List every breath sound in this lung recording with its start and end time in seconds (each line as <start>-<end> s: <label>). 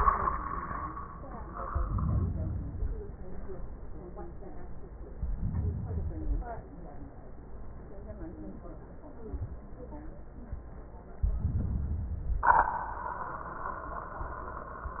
1.70-2.73 s: inhalation
5.13-6.24 s: inhalation
11.20-12.31 s: inhalation